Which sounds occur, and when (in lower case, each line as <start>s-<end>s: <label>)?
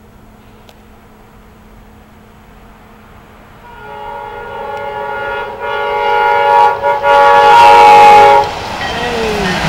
0.0s-9.6s: background noise
0.0s-9.6s: train
0.6s-0.7s: tick
3.6s-8.5s: train horn
4.7s-4.8s: tick
8.4s-8.5s: tick
8.8s-9.6s: bell
8.8s-9.6s: speech